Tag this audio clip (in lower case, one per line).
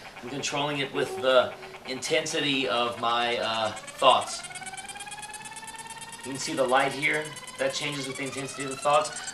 speech